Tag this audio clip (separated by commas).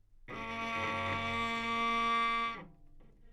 Musical instrument, Music, Bowed string instrument